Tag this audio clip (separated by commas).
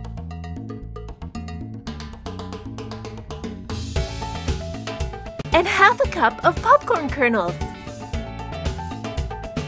popping popcorn